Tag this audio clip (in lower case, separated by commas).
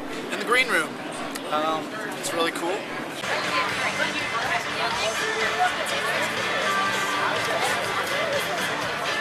music, speech